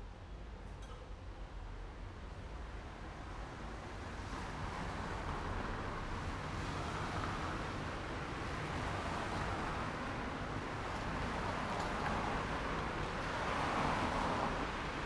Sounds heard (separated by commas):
car, car wheels rolling